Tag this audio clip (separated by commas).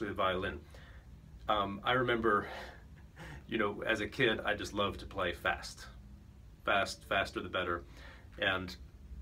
Speech